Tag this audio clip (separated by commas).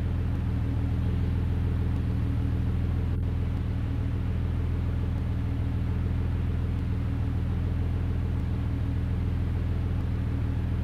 Vehicle